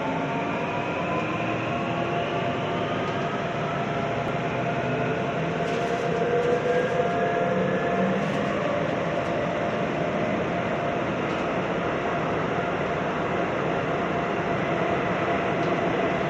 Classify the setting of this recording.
subway train